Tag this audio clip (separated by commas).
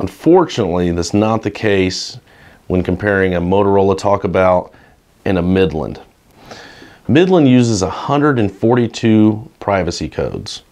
Speech